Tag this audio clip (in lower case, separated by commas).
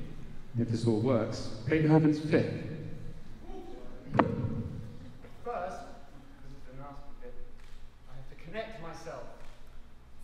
speech